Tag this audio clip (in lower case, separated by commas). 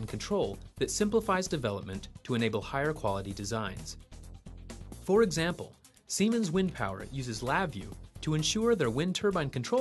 speech